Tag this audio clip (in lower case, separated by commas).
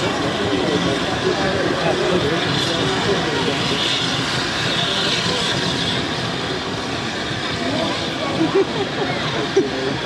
vehicle, hubbub, train, speech, rail transport, train wagon